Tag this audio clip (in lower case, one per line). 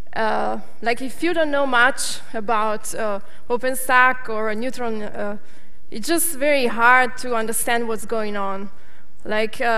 speech